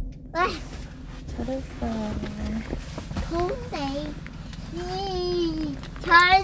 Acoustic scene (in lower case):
car